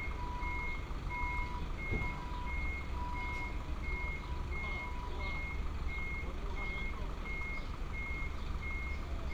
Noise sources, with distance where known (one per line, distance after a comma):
person or small group talking